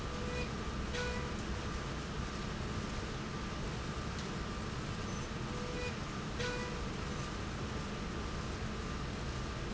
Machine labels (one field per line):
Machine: slide rail